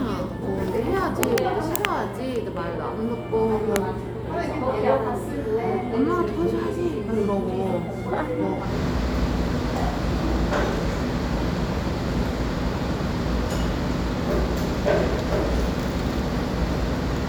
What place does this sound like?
cafe